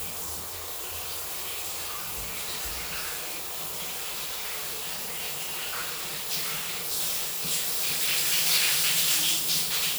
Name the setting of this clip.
restroom